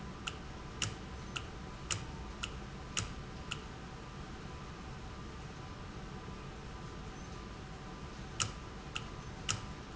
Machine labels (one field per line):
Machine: valve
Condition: normal